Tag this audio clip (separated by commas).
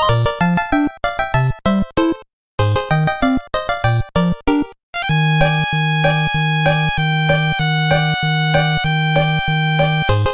Music